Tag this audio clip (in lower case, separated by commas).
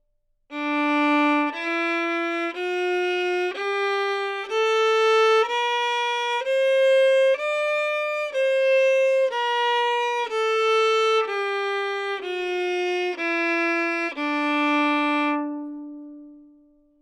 musical instrument, bowed string instrument, music